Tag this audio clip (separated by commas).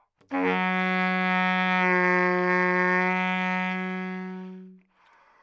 woodwind instrument, Musical instrument, Music